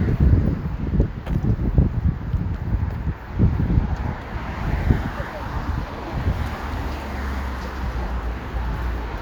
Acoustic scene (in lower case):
street